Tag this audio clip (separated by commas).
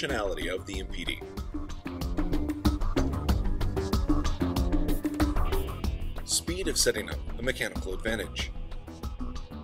Music, Speech